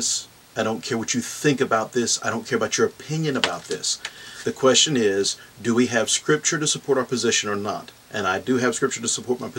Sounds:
Speech

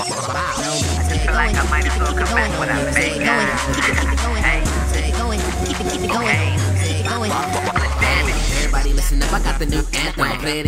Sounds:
Music

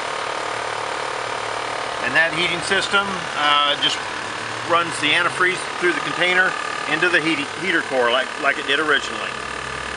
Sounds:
Engine, Speech

